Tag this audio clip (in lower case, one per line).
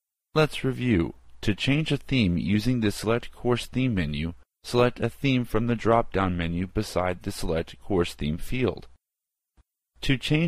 speech synthesizer